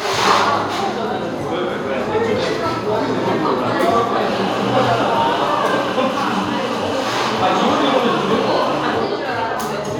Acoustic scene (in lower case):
cafe